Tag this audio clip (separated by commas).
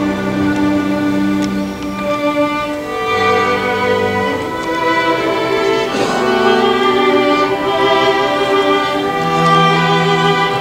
Soul music, Music, Orchestra